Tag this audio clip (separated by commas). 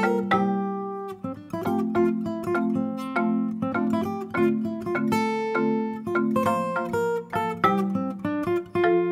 Musical instrument, Strum, Guitar, Acoustic guitar, Plucked string instrument, Music